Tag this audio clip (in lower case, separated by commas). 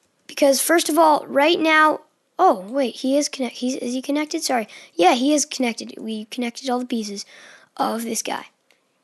speech, clicking